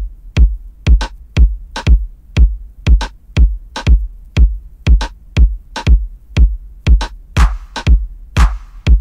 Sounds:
Electronic dance music, Electronic music, Music

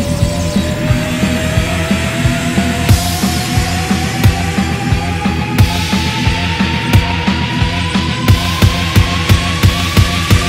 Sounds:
Dubstep, Electronic music, Music

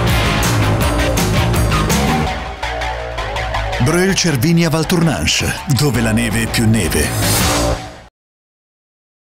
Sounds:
Speech, Music

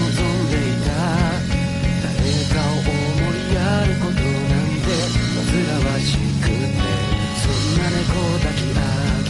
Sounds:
Music

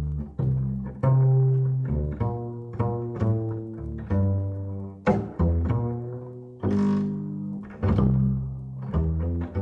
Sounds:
playing double bass

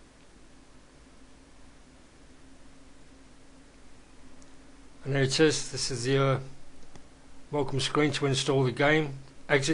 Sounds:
Speech

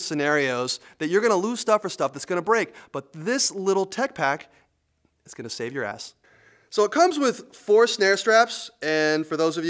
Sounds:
Speech

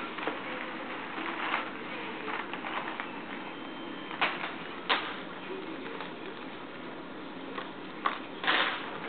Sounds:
Speech

